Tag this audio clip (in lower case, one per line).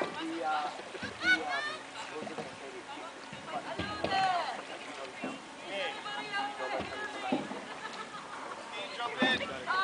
speech
boat
vehicle